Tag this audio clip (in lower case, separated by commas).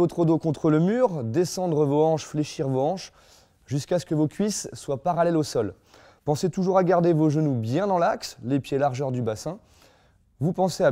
speech, inside a small room